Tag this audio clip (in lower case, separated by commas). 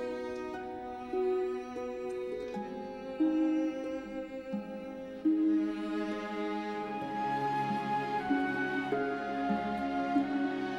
cello